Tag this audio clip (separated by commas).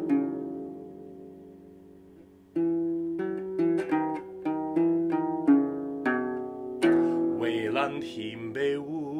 Music, Bowed string instrument, Musical instrument, Plucked string instrument